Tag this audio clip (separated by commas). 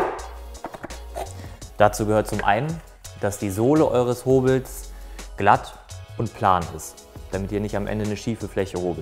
planing timber